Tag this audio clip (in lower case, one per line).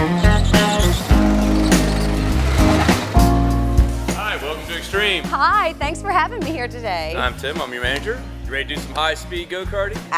music
speech